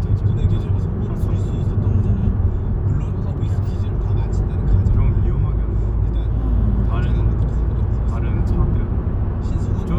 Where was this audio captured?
in a car